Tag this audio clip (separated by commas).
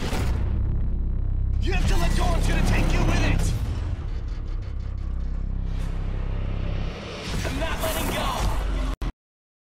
Speech, Music